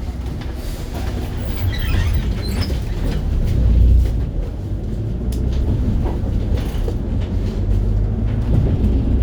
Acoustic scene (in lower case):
bus